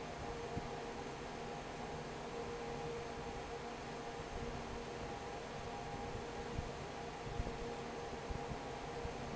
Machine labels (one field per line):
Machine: fan